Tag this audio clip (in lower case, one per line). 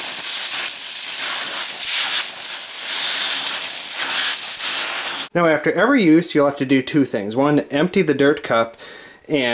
vacuum cleaner